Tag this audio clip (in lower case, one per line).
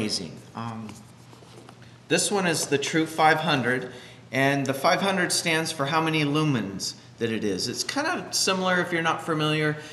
speech